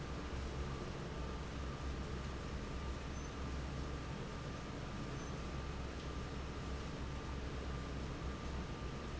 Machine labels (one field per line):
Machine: fan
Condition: normal